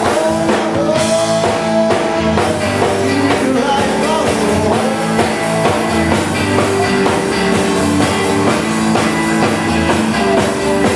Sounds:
music

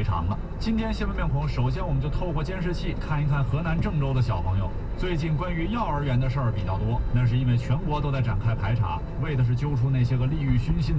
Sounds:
speech, vehicle

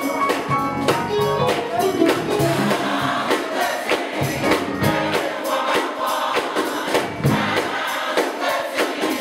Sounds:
male singing, female singing, music

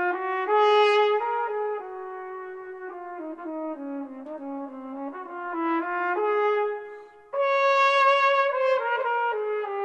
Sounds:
trumpet, brass instrument

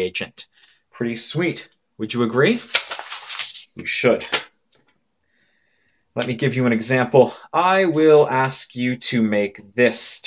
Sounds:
speech

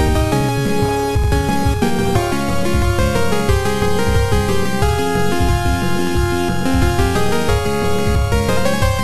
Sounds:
music

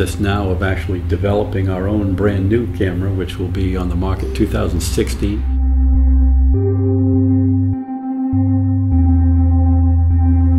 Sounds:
music, speech

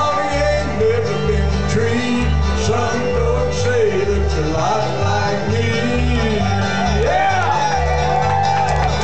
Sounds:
music, male singing

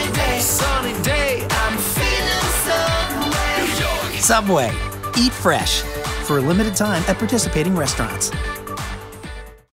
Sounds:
music, speech

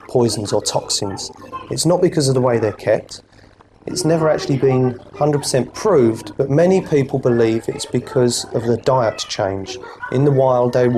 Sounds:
speech

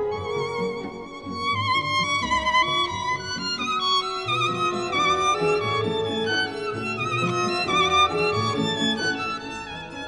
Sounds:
musical instrument, music, violin

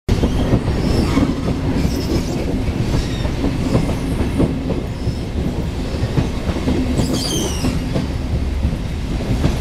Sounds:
clickety-clack, rail transport, train, railroad car

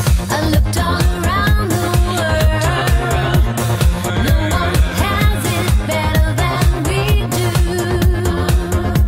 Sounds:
music

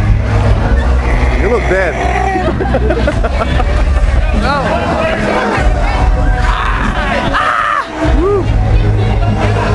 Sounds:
speech, music

